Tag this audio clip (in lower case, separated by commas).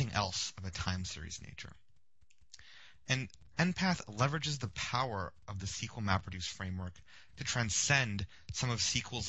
speech